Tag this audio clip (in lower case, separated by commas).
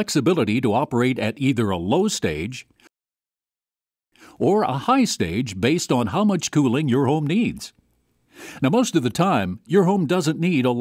speech